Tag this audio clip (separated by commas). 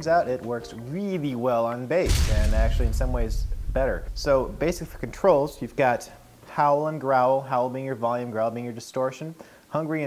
Speech